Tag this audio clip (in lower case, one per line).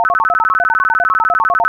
alarm
telephone